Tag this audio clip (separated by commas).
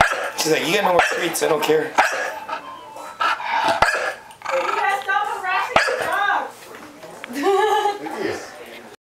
Speech, Dog, canids, Animal, Bark